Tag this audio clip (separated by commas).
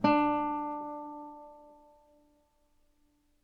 Plucked string instrument, Music, Musical instrument, Guitar